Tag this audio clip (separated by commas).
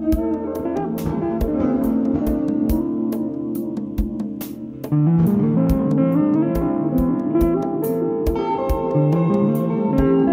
Music